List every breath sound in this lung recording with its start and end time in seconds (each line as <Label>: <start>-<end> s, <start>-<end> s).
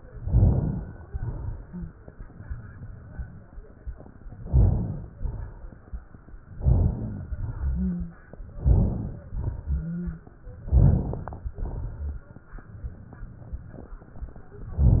Inhalation: 0.00-1.05 s, 4.36-5.16 s, 6.57-7.33 s, 8.47-9.36 s, 10.58-11.48 s, 14.71-15.00 s
Exhalation: 1.06-2.10 s, 5.15-5.95 s, 7.30-8.19 s, 9.35-10.25 s, 11.52-12.42 s
Wheeze: 1.52-2.01 s, 7.30-8.19 s, 9.35-10.25 s